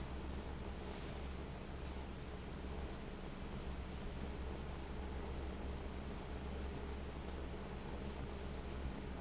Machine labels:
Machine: fan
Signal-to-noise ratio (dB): 6 dB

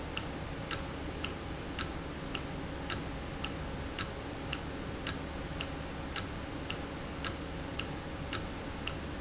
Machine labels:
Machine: valve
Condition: normal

